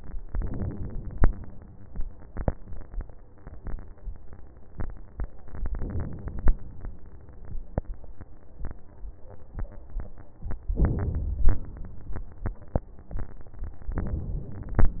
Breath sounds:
Inhalation: 0.25-1.25 s, 5.53-6.52 s, 10.75-11.48 s, 13.97-14.77 s
Exhalation: 11.46-12.18 s, 14.79-15.00 s

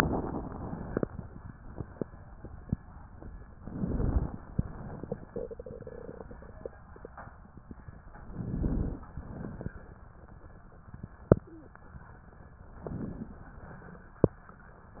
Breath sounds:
Inhalation: 3.57-4.40 s, 8.23-9.07 s, 12.79-13.47 s
Exhalation: 4.48-5.31 s, 9.14-9.83 s

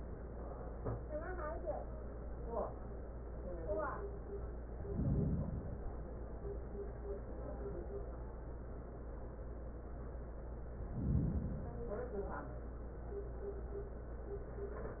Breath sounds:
Inhalation: 4.76-6.06 s, 10.68-11.98 s

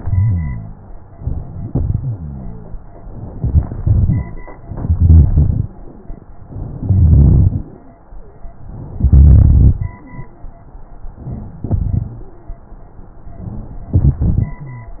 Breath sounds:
Inhalation: 1.16-1.69 s, 3.17-3.74 s, 4.65-5.71 s, 6.64-7.70 s, 8.96-9.92 s, 11.23-12.20 s, 13.95-15.00 s
Exhalation: 1.69-2.12 s, 3.80-4.38 s
Rhonchi: 0.00-0.86 s, 2.11-2.96 s, 3.38-3.72 s, 3.80-4.38 s, 14.63-15.00 s
Crackles: 4.65-5.71 s, 6.64-7.70 s, 8.96-9.92 s, 11.23-12.20 s, 13.96-14.63 s

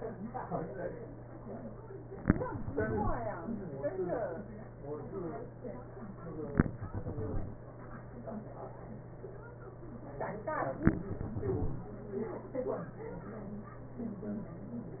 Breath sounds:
Exhalation: 2.74-3.58 s, 6.96-7.39 s, 10.99-11.91 s

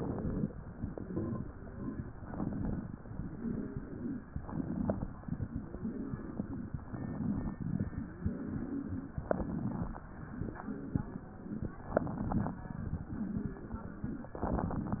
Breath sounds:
Inhalation: 0.00-0.51 s, 2.15-3.04 s, 4.36-5.26 s, 6.77-7.63 s, 9.20-10.00 s, 11.93-12.68 s
Exhalation: 0.61-1.50 s, 3.07-4.35 s, 5.43-6.70 s, 7.85-9.13 s, 10.38-11.80 s, 12.86-14.29 s
Wheeze: 3.07-4.35 s, 5.43-6.70 s, 7.85-9.13 s, 10.38-11.80 s, 12.86-14.29 s, 12.86-14.29 s
Crackles: 0.00-0.51 s, 4.36-5.26 s, 9.20-10.00 s

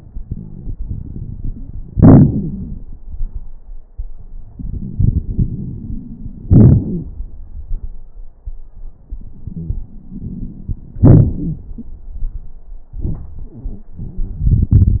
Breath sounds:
Inhalation: 0.15-1.89 s, 4.51-6.41 s, 9.82-10.97 s
Exhalation: 1.90-3.00 s, 6.44-7.25 s, 10.98-12.14 s
Wheeze: 6.44-7.25 s
Crackles: 0.15-1.89 s, 1.90-3.00 s, 4.51-6.41 s, 9.82-10.97 s, 10.98-12.14 s

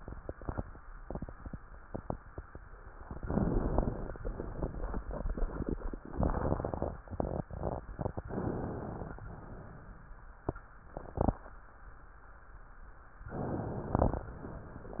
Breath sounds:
Inhalation: 3.19-4.19 s, 6.12-6.95 s, 8.28-9.25 s, 13.31-14.29 s
Exhalation: 9.24-10.36 s
Crackles: 3.17-4.14 s, 6.12-6.95 s, 8.28-9.25 s

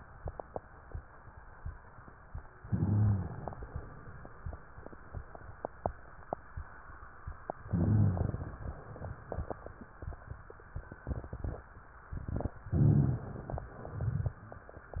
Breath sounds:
Inhalation: 2.55-3.82 s, 7.67-8.63 s
Rhonchi: 2.68-3.30 s, 7.68-8.32 s, 12.69-13.19 s
Crackles: 12.74-13.70 s

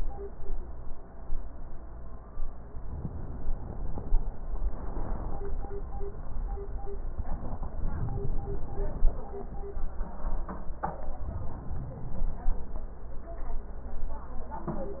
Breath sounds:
Inhalation: 2.94-4.36 s, 7.67-9.09 s, 11.35-12.77 s

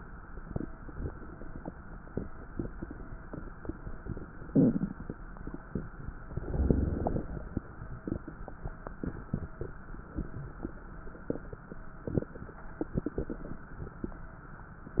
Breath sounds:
Inhalation: 6.27-6.97 s
Exhalation: 6.99-8.25 s
Crackles: 6.27-6.97 s, 6.99-8.25 s

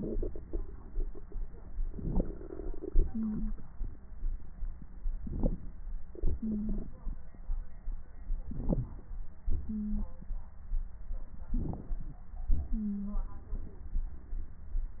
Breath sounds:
Inhalation: 1.92-2.45 s, 5.20-5.77 s, 8.46-9.03 s, 11.55-12.22 s
Exhalation: 2.85-5.01 s, 6.17-7.46 s, 9.47-10.66 s, 12.52-14.65 s
Wheeze: 3.13-3.54 s, 6.41-6.82 s, 9.66-10.06 s, 12.68-13.18 s

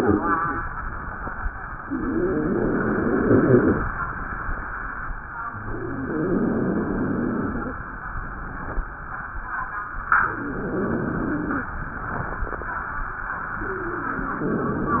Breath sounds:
Inhalation: 1.82-3.87 s, 5.69-7.74 s, 10.40-11.67 s, 13.62-15.00 s
Wheeze: 1.82-3.87 s, 5.69-7.74 s, 10.40-11.67 s, 13.62-15.00 s

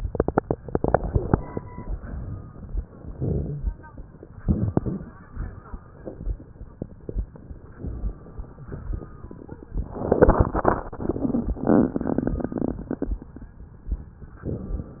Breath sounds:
Inhalation: 2.98-3.82 s, 4.29-5.42 s

